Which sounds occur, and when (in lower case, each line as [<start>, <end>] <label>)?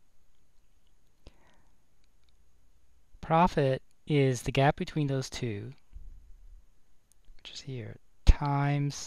[0.00, 9.05] background noise
[0.30, 0.38] clicking
[0.52, 0.61] clicking
[0.82, 0.91] clicking
[1.04, 1.14] clicking
[1.26, 1.78] breathing
[1.99, 2.05] clicking
[2.18, 2.34] clicking
[3.20, 3.78] male speech
[3.86, 3.98] clicking
[4.11, 5.80] male speech
[5.70, 5.92] generic impact sounds
[7.08, 7.43] clicking
[7.43, 7.99] male speech
[8.28, 9.05] male speech
[8.42, 8.52] clicking